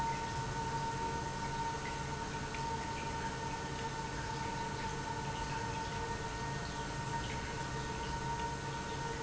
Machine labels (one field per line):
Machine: pump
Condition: normal